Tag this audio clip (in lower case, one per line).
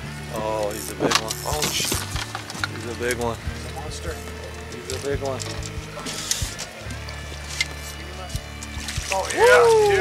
music
speech